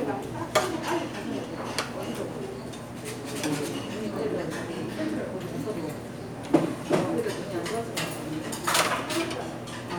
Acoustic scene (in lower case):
restaurant